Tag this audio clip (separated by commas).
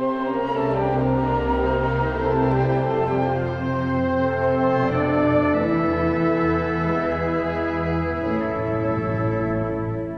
Musical instrument, Violin, Music